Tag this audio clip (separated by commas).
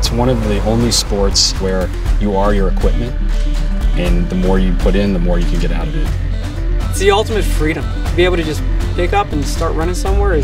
Music, Speech